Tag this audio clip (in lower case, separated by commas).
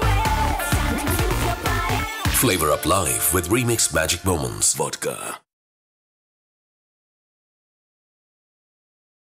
speech, music